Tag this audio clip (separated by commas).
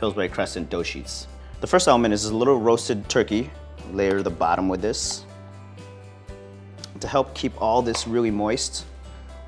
Music, Speech